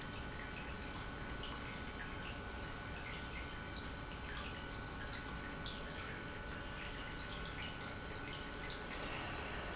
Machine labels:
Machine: pump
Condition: normal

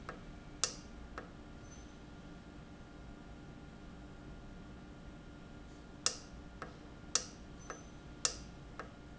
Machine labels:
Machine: valve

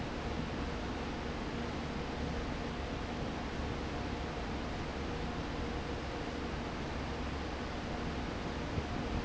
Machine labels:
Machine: fan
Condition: abnormal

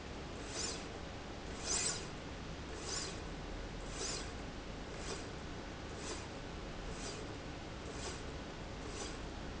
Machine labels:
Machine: slide rail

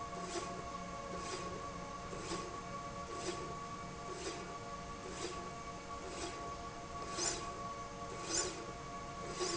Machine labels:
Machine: slide rail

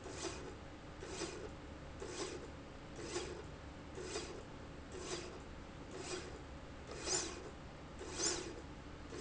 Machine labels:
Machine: slide rail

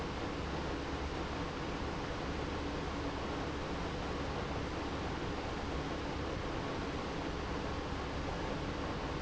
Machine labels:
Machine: pump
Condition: abnormal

